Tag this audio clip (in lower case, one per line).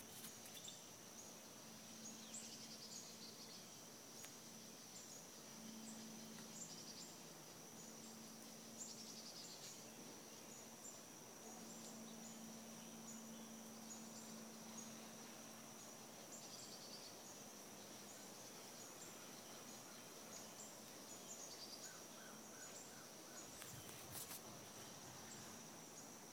wild animals
frog
animal